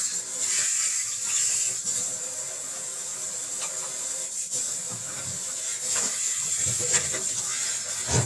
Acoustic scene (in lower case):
kitchen